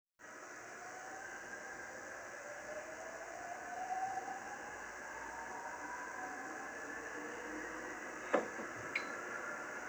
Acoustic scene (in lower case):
subway train